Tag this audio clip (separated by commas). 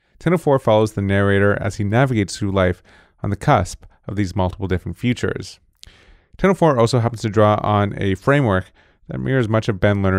Speech